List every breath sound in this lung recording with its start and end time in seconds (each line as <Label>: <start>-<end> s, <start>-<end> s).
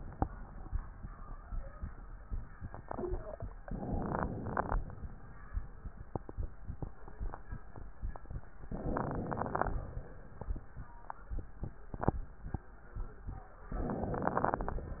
Inhalation: 3.59-4.79 s, 8.70-10.13 s, 13.70-15.00 s